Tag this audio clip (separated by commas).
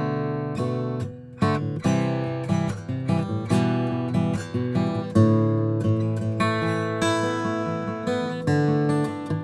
Music